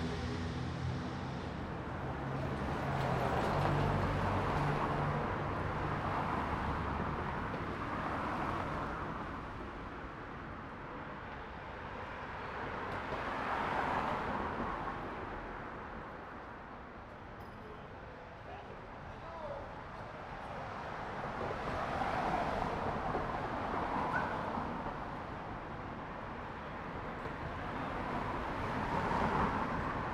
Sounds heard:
car engine accelerating
car
car wheels rolling
people talking

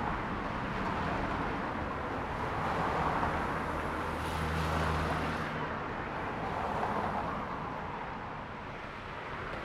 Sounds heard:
car engine accelerating
car wheels rolling
car

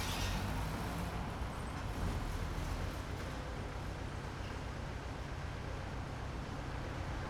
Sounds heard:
car
car engine accelerating
car engine idling
car wheels rolling

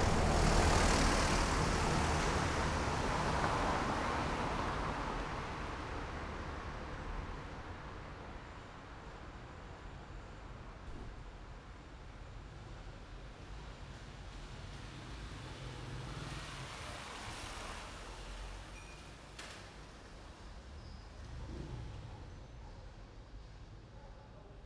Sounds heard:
car
car wheels rolling
bus wheels rolling
bus
motorcycle engine accelerating
motorcycle
motorcycle brakes
bus engine accelerating

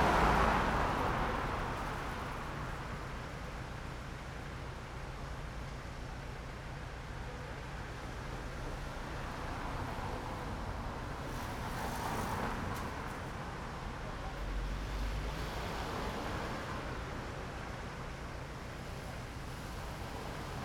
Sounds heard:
car
car engine idling
car wheels rolling
car engine accelerating

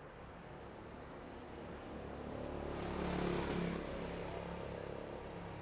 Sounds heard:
motorcycle engine accelerating
motorcycle

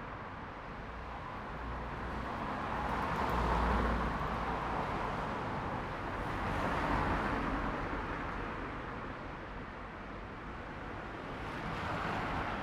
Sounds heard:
car wheels rolling
car engine accelerating
car

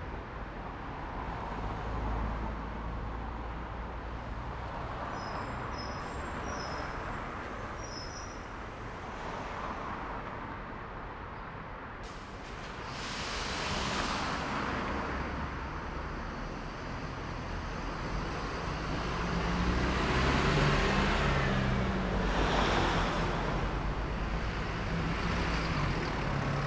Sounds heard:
car engine accelerating
car
car wheels rolling
bus brakes
bus
bus compressor
bus engine accelerating

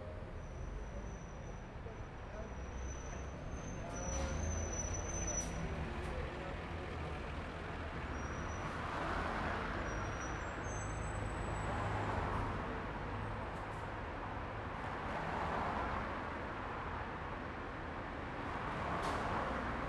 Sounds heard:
car wheels rolling
car
bus brakes
people talking
car engine accelerating
bus
bus engine idling
bus compressor
bus wheels rolling

